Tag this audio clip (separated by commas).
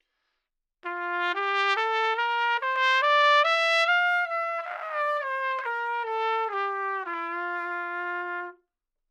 Musical instrument, Brass instrument, Music, Trumpet